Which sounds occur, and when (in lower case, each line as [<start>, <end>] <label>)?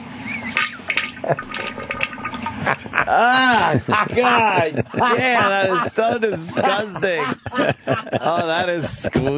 [0.00, 9.35] mechanisms
[0.23, 0.84] whistling
[0.52, 2.63] toilet flush
[1.22, 1.39] human voice
[2.63, 3.40] laughter
[3.06, 3.77] male speech
[3.52, 5.23] laughter
[4.12, 4.72] male speech
[4.96, 7.32] male speech
[5.39, 6.15] laughter
[6.31, 7.31] laughter
[7.45, 8.65] laughter
[8.15, 9.35] male speech
[8.81, 9.35] laughter